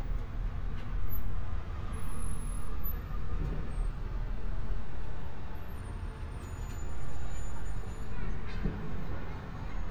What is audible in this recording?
large-sounding engine